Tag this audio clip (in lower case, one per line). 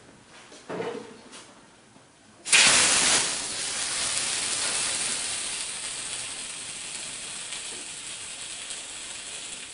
fire